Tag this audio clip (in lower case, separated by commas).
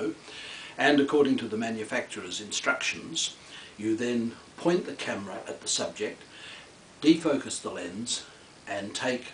speech